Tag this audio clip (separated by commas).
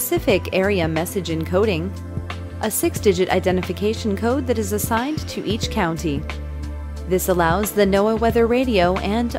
Music, Speech